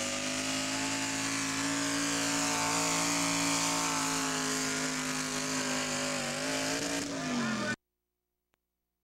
A truck is revving its engine and passing by